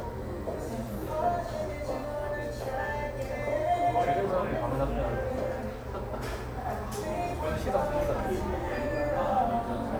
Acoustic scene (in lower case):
cafe